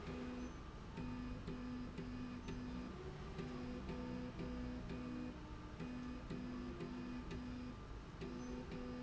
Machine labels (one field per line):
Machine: slide rail